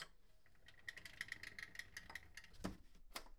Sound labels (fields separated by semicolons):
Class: window; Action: closing